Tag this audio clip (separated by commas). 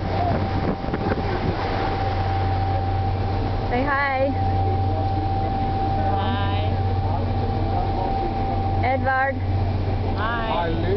Vehicle, Speech